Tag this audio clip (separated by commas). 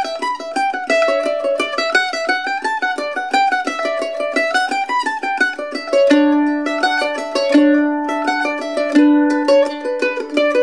Pizzicato, Musical instrument, Music